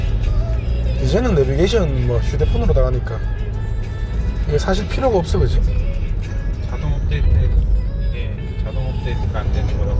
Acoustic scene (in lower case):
car